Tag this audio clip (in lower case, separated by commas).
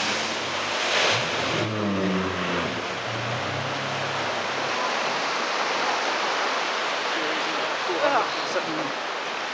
vehicle, speedboat, speech